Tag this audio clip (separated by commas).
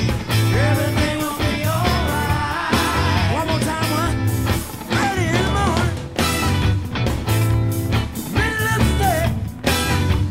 Musical instrument, Funk, Music, Singing